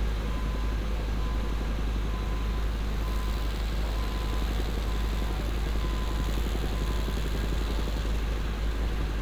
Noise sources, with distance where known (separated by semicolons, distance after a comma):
engine of unclear size; unidentified alert signal